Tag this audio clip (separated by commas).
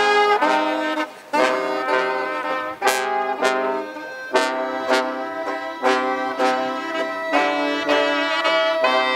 Music